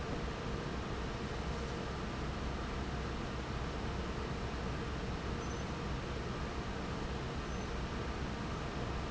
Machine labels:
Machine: fan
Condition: normal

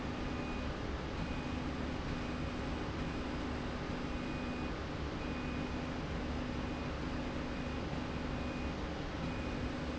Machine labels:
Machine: slide rail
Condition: normal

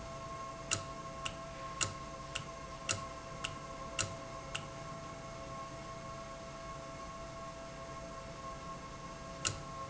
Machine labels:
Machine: valve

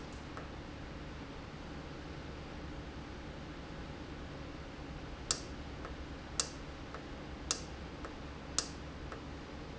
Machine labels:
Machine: valve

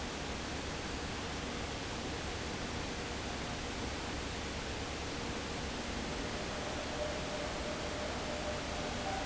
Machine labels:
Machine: fan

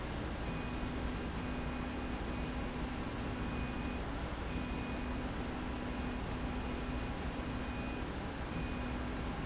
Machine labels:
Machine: slide rail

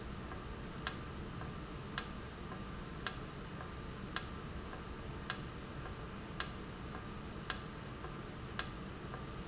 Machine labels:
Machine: valve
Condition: normal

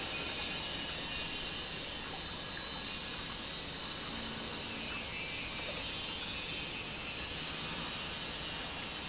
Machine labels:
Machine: pump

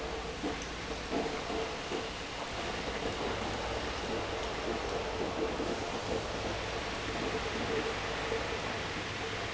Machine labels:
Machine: pump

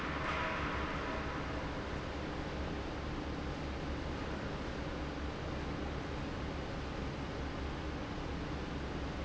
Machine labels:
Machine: fan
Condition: normal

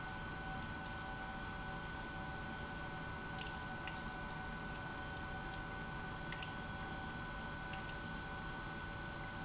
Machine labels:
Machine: pump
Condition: abnormal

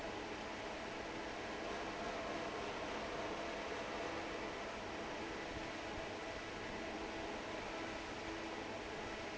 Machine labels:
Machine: fan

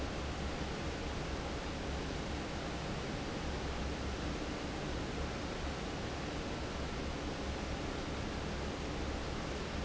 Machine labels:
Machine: fan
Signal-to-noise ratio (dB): -6 dB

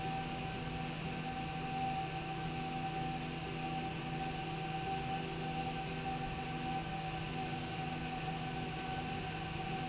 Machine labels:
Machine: slide rail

